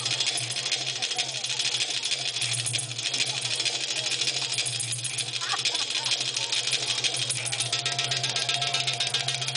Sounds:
speech, music

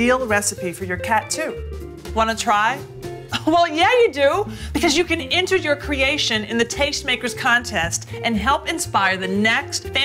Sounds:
speech, music

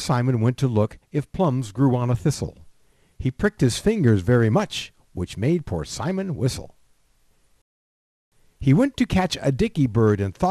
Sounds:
speech

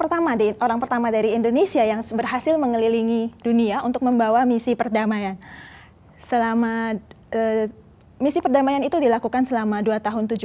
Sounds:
speech

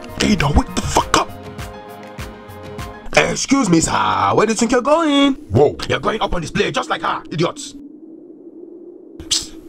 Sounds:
music, speech

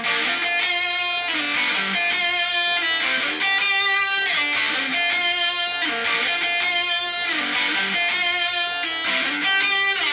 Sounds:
guitar, music, musical instrument, plucked string instrument

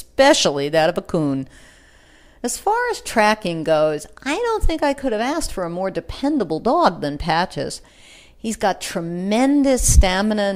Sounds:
speech

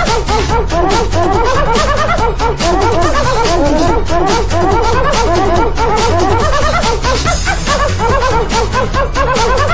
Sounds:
bow-wow, music

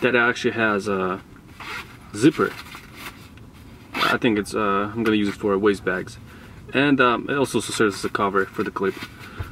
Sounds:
speech

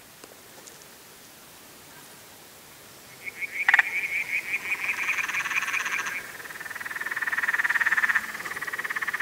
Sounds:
frog croaking

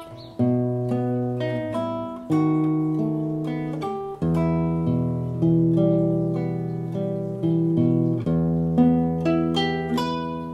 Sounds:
music, acoustic guitar, strum, plucked string instrument, guitar, musical instrument

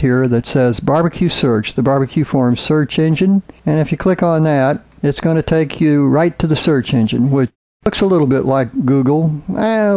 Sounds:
speech

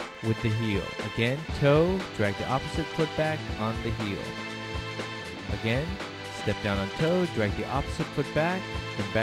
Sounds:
speech, music

